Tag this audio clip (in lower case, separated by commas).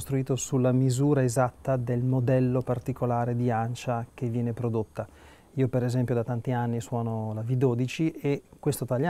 speech